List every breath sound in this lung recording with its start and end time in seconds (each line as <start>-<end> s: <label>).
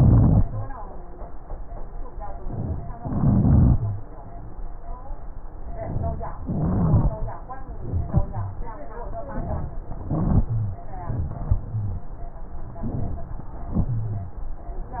0.00-0.69 s: rhonchi
2.94-3.78 s: inhalation
3.00-3.74 s: rhonchi
3.72-4.08 s: wheeze
6.41-7.17 s: inhalation
6.43-7.16 s: wheeze
9.92-10.53 s: inhalation
9.92-10.53 s: rhonchi
10.53-10.87 s: exhalation
10.53-10.87 s: wheeze
11.63-12.18 s: wheeze
13.81-14.36 s: wheeze